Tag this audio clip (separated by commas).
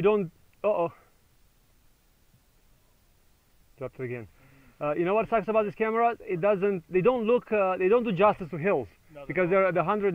Speech